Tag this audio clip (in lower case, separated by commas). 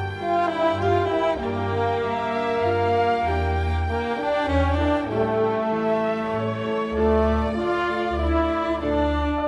musical instrument, classical music, bowed string instrument, orchestra, music